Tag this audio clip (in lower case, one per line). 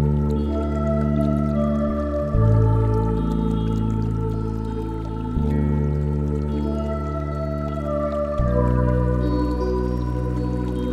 new-age music
music